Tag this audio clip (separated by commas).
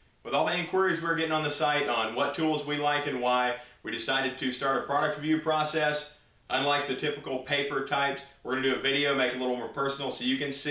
Speech